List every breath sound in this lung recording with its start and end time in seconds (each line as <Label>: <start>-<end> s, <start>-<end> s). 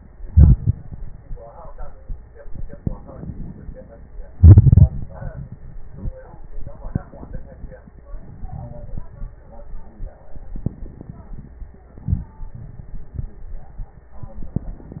Inhalation: 0.19-0.83 s, 4.32-4.96 s